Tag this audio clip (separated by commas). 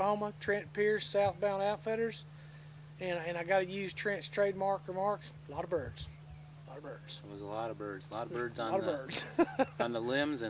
Speech